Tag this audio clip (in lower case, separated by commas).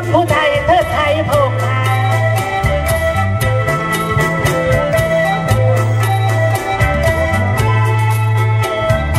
music, ska